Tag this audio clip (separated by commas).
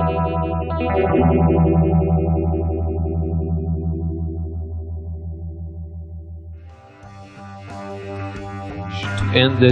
Music, Effects unit, Plucked string instrument, Distortion, Guitar, Musical instrument, Speech